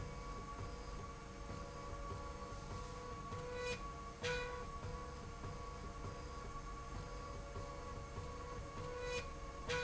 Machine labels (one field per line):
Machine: slide rail